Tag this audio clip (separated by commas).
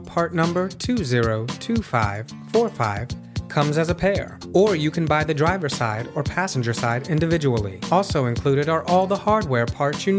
Speech, Music